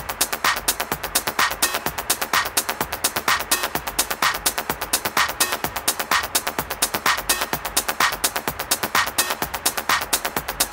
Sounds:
music
electronic music
techno

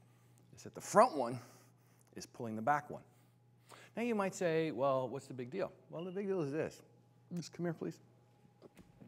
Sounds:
speech

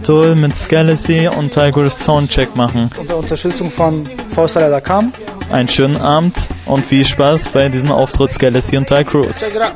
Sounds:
music
speech

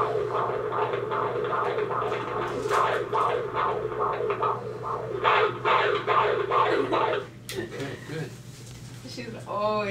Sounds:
speech

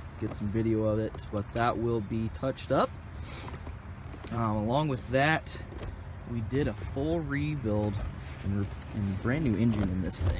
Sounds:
speech

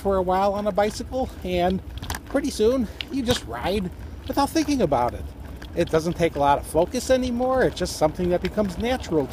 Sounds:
speech
bicycle
vehicle

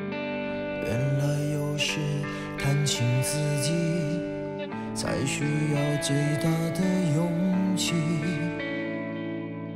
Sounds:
music

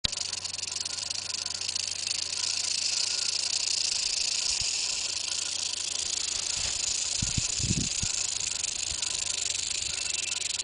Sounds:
snake rattling

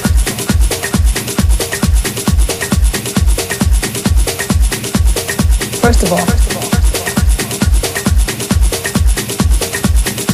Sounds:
music

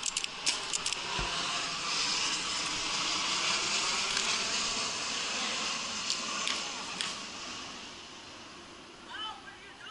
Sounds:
speech

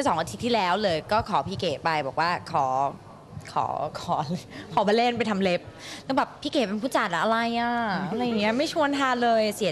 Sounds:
speech

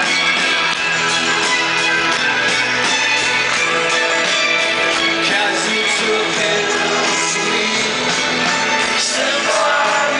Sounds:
music

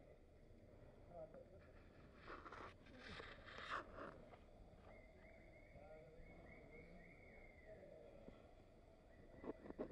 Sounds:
animal
horse
speech
clip-clop

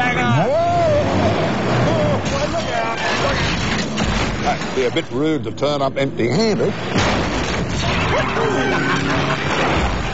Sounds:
music
speech

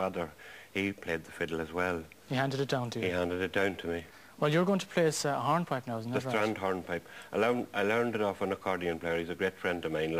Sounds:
speech

